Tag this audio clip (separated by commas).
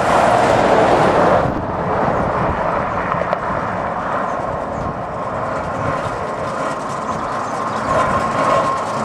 Vehicle